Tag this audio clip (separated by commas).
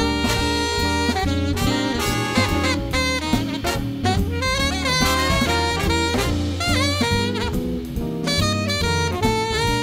playing saxophone